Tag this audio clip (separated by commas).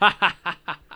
Laughter, Human voice